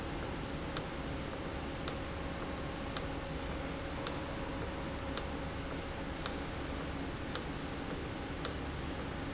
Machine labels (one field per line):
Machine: valve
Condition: normal